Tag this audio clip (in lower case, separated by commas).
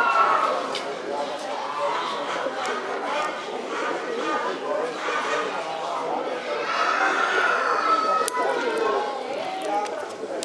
animal, speech